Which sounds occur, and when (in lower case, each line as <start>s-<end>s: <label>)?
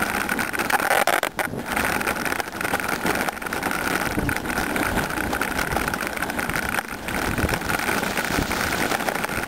0.0s-9.4s: bicycle
0.0s-9.4s: wind
1.3s-1.6s: wind noise (microphone)
3.0s-3.3s: wind noise (microphone)
4.1s-4.4s: wind noise (microphone)
7.1s-7.5s: wind noise (microphone)